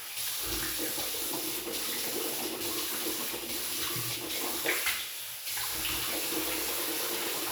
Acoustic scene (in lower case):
restroom